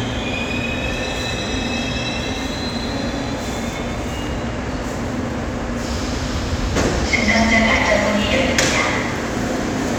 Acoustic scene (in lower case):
subway station